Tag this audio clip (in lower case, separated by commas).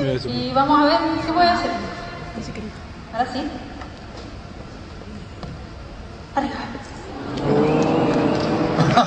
speech